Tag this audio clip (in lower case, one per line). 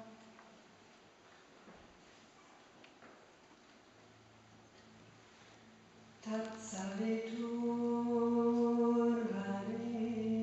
mantra